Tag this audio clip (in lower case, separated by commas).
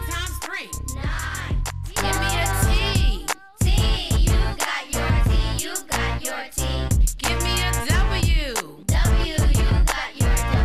sampler, music